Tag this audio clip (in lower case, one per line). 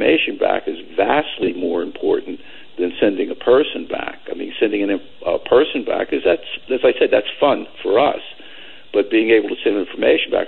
speech